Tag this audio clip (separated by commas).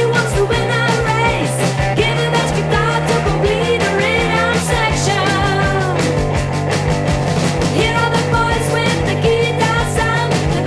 Pop music, Music